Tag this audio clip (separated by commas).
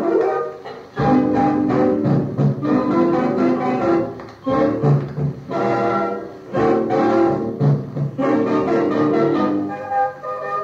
Music